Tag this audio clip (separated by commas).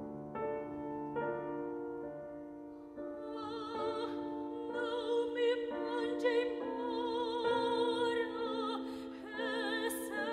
Music, Sad music